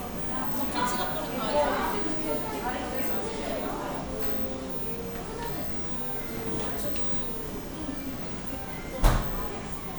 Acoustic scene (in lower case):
cafe